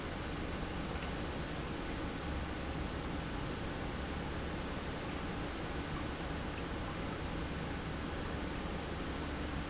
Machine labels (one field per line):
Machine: pump